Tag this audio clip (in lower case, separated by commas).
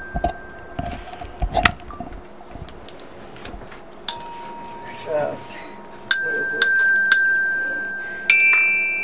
playing glockenspiel